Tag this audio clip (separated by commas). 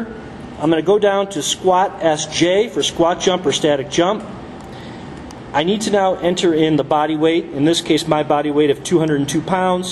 Speech